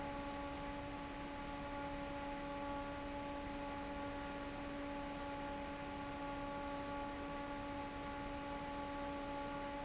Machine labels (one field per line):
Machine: fan